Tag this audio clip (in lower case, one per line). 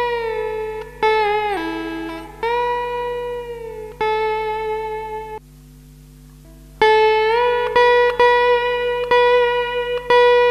music
plucked string instrument
musical instrument
guitar